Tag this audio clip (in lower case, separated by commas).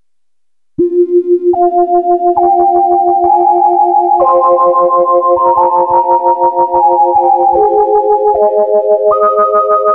musical instrument, synthesizer, music